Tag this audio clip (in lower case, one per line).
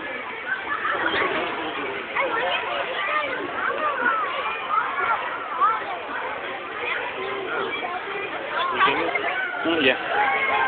speech